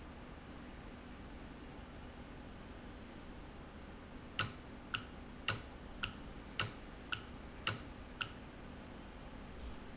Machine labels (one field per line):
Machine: valve